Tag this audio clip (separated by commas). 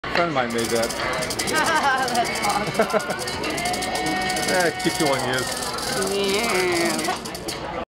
Rattle, Speech